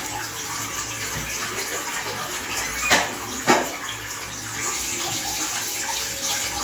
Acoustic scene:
restroom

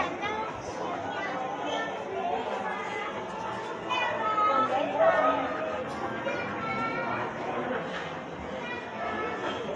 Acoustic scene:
crowded indoor space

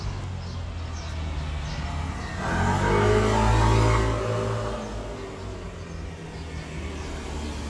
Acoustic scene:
residential area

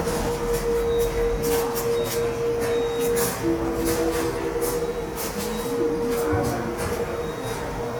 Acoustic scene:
subway station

